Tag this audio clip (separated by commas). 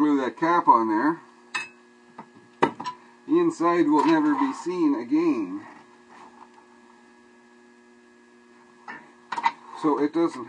Hum